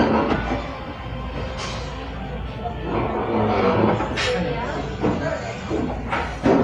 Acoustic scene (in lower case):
restaurant